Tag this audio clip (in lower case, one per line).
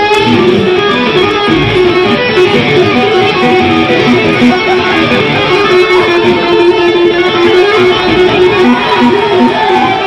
music